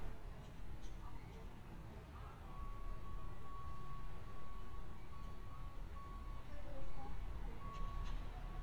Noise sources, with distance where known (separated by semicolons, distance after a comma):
reverse beeper, far; person or small group talking, far